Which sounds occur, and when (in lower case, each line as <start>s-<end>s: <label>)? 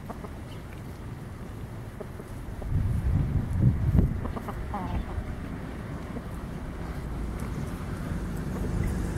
0.0s-9.1s: wind
0.1s-0.1s: cluck
0.2s-0.3s: cluck
0.4s-0.6s: tweet
0.7s-0.7s: tick
2.0s-2.0s: cluck
2.1s-2.2s: cluck
2.6s-2.6s: cluck
2.7s-4.4s: wind noise (microphone)
4.2s-4.5s: cluck
4.7s-5.1s: cluck
4.9s-5.1s: tweet
6.1s-6.2s: cluck
7.3s-9.1s: motorboat
8.5s-8.7s: cluck